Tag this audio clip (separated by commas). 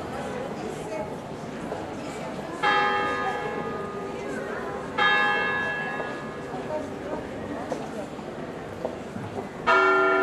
Church bell